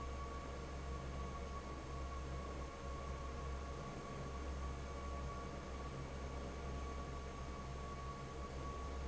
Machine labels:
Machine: fan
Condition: normal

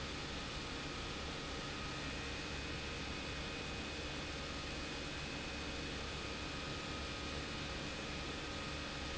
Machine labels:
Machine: pump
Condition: abnormal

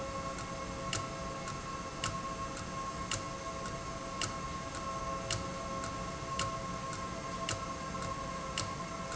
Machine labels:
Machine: valve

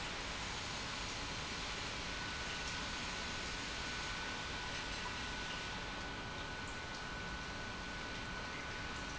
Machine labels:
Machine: pump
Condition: normal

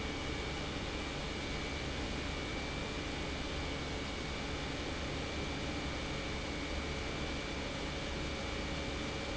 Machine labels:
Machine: pump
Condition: abnormal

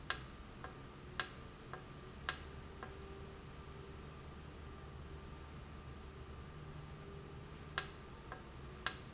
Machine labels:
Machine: valve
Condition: normal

